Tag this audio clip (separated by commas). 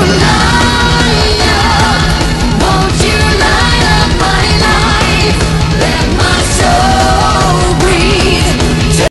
Music